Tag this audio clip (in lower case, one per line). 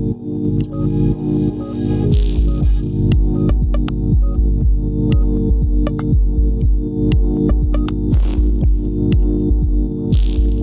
music